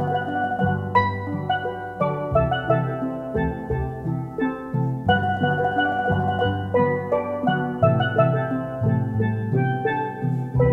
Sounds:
Music

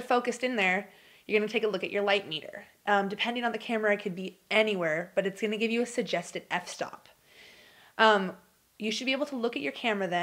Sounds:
Speech

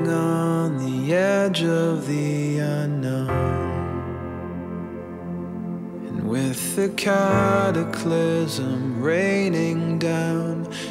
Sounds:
Music

